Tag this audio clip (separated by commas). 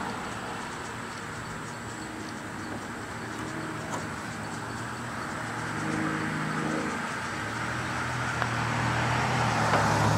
outside, urban or man-made